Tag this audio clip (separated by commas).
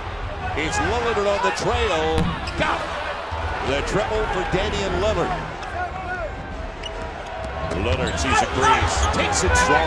Basketball bounce